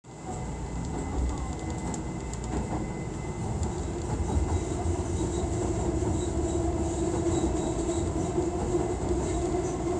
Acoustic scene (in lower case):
subway train